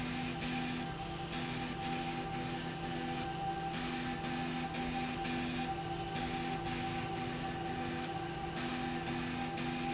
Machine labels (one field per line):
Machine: slide rail